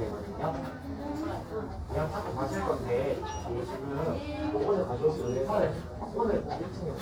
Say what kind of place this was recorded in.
crowded indoor space